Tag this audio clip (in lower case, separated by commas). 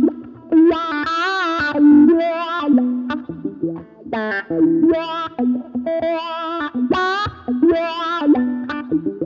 distortion, music, electric guitar, tapping (guitar technique)